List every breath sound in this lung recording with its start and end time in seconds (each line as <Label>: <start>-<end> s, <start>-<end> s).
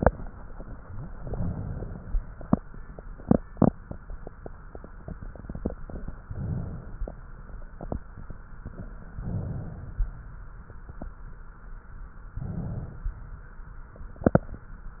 Inhalation: 6.26-7.08 s, 9.07-9.94 s, 12.32-13.05 s
Crackles: 9.07-9.94 s, 12.32-13.05 s